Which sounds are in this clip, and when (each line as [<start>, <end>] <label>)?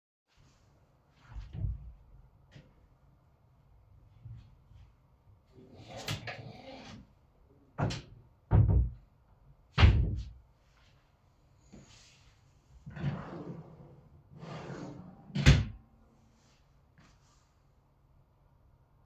[1.35, 1.95] wardrobe or drawer
[5.53, 7.06] wardrobe or drawer
[7.75, 8.99] wardrobe or drawer
[9.73, 10.43] wardrobe or drawer
[12.85, 16.06] wardrobe or drawer